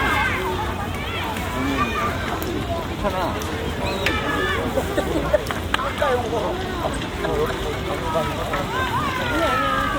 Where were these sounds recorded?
in a park